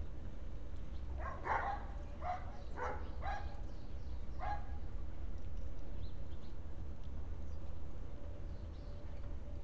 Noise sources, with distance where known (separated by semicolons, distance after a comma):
dog barking or whining, near